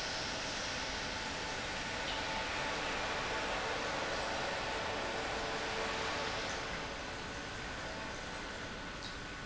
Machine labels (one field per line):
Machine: pump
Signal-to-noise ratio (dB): -6 dB